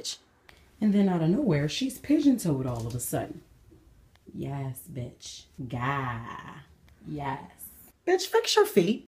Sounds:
speech

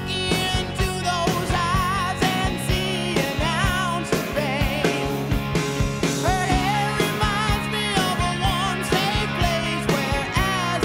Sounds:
child singing

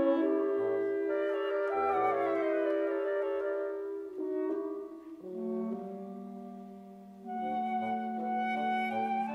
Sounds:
woodwind instrument
music
musical instrument
inside a large room or hall

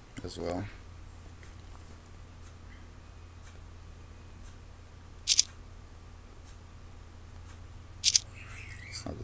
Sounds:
speech

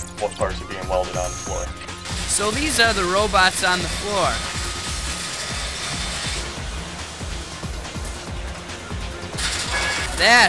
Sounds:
music
speech

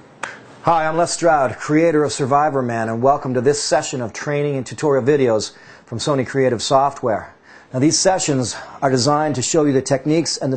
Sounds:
speech

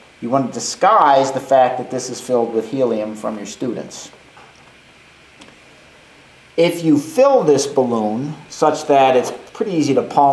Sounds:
speech

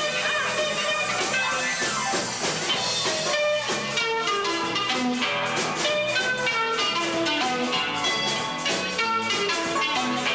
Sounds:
strum
music
musical instrument
plucked string instrument
electric guitar

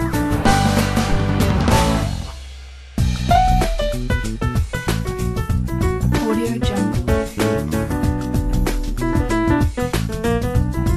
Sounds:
theme music
speech
music

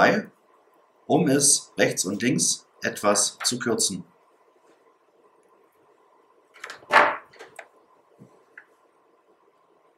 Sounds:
speech

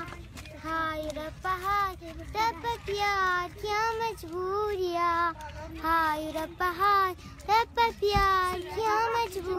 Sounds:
speech

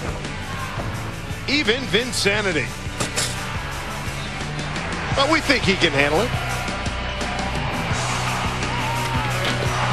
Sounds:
music
speech

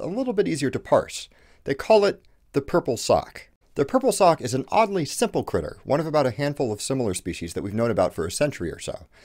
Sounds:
speech

